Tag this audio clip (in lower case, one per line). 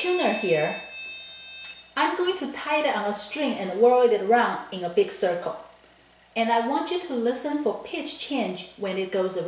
speech
beep